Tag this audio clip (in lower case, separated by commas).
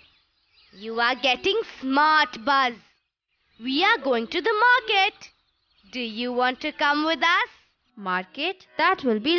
speech, music